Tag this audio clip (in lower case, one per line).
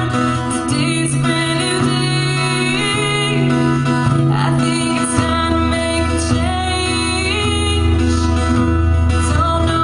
music
guitar
acoustic guitar
singing